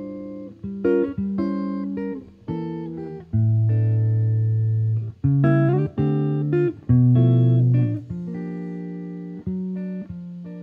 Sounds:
Guitar, Jazz, Plucked string instrument, Music, Musical instrument

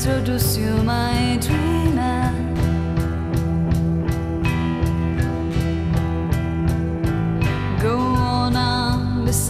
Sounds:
Music

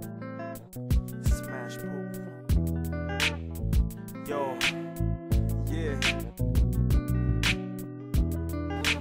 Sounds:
Music

